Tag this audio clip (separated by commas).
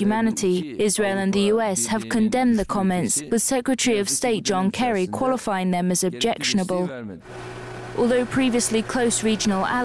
woman speaking, Speech, man speaking, monologue